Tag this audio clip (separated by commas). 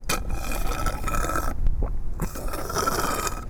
Liquid